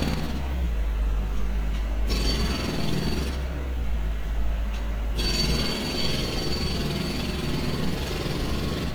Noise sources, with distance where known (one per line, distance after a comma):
jackhammer, near